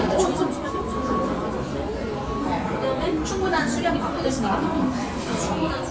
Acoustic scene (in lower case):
cafe